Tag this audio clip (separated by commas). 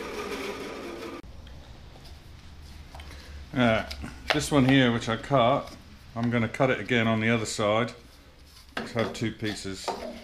Wood